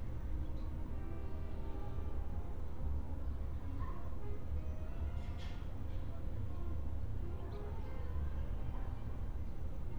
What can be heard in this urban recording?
music from a fixed source